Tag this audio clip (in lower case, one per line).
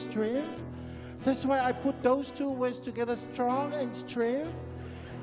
speech
music